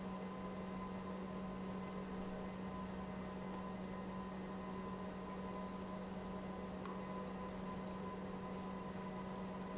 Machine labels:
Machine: pump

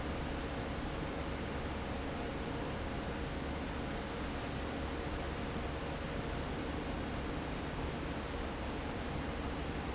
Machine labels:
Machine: fan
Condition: normal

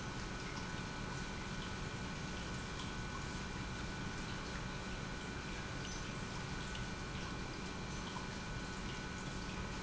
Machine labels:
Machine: pump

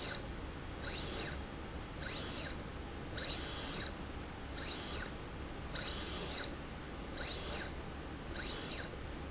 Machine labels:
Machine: slide rail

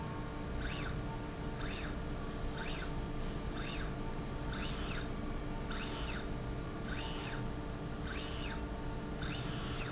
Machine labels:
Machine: slide rail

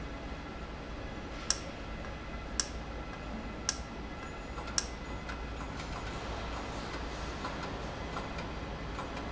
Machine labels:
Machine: valve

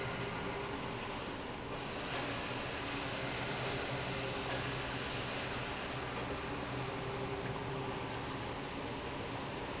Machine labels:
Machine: pump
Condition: normal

